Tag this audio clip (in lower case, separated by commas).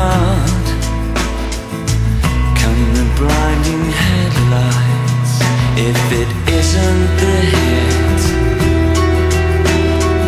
music